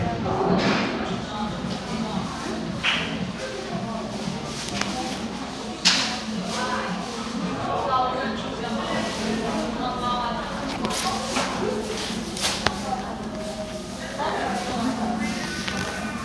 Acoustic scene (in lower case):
crowded indoor space